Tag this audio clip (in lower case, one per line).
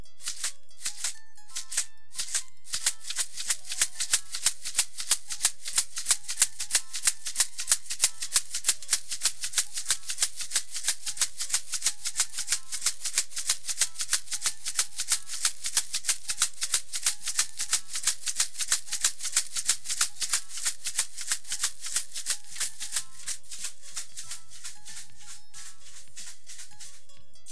percussion
musical instrument
rattle (instrument)
music